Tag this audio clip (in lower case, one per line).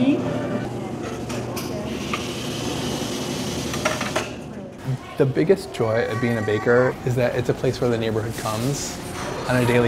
speech
inside a public space